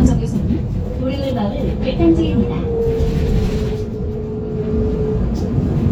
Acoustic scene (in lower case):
bus